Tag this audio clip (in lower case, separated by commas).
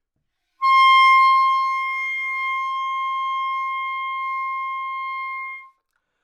woodwind instrument, musical instrument, music